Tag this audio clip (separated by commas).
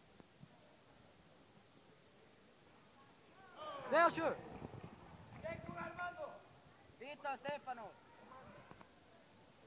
Speech, inside a large room or hall